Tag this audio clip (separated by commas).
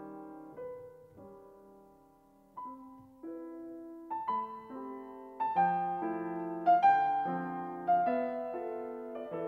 Music